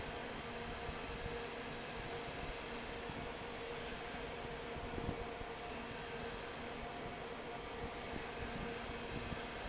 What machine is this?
fan